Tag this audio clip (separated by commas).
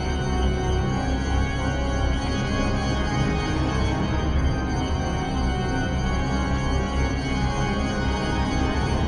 Scary music, Music